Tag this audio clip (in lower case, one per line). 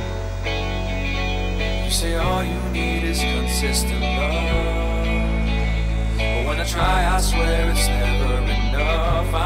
music